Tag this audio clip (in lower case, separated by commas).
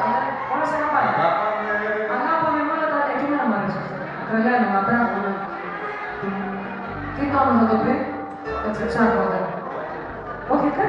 speech, music, inside a large room or hall